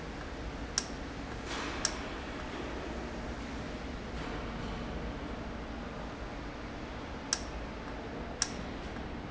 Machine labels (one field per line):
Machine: valve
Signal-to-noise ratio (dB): -6 dB